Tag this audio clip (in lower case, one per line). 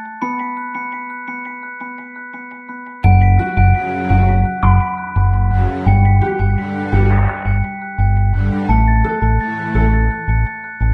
music